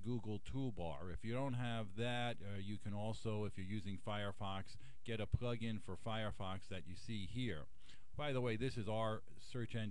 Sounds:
speech

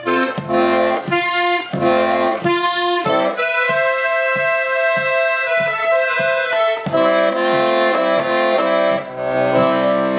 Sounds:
accordion
playing accordion

